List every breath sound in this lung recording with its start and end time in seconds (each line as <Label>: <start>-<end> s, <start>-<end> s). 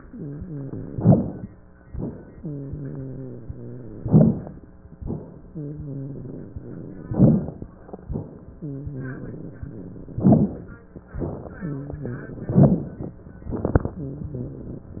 Inhalation: 0.91-1.41 s, 3.98-4.61 s, 7.11-7.72 s, 10.17-10.78 s, 12.56-13.07 s
Wheeze: 0.00-0.88 s, 0.93-1.38 s, 2.35-3.99 s, 4.04-4.49 s, 5.50-7.06 s, 8.59-10.15 s, 10.17-10.62 s, 11.63-12.51 s, 12.54-12.99 s, 14.00-15.00 s
Rhonchi: 7.11-7.56 s